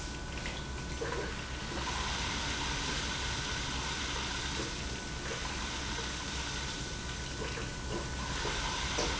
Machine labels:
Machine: pump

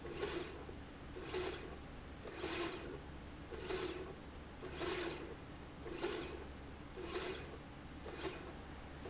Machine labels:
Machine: slide rail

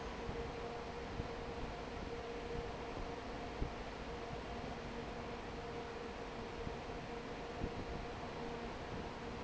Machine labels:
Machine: fan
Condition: normal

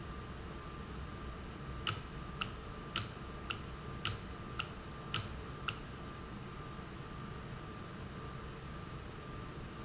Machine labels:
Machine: valve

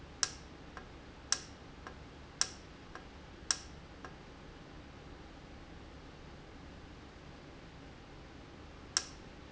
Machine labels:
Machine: valve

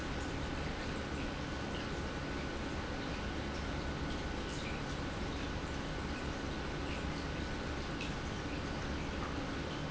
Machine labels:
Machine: pump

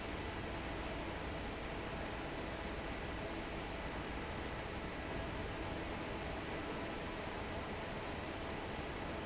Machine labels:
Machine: fan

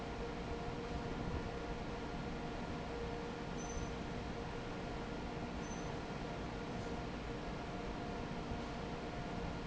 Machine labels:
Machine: fan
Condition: normal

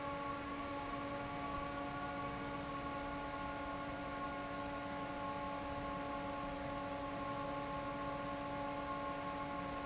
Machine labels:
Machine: fan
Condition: normal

